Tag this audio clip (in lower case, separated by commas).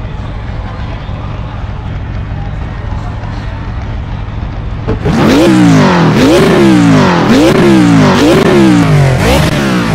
car, vehicle